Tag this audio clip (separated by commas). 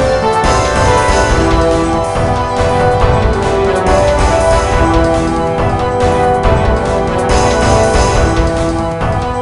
Music